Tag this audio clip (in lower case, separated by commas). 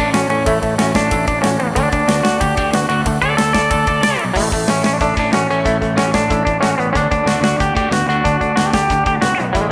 music